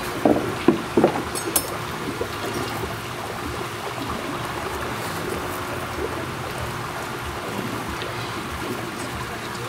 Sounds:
speech

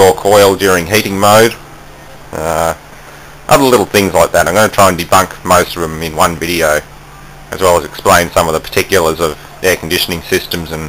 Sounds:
speech

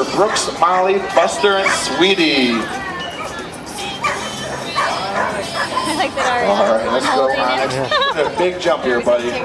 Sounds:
yip
animal
dog
bow-wow
music
domestic animals
speech

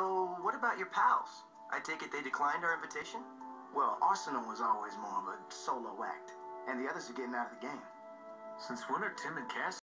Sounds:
speech
music

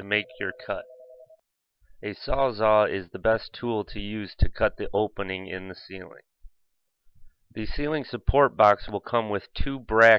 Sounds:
speech

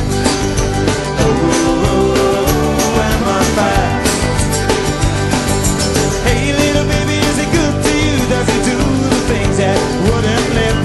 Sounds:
country
music

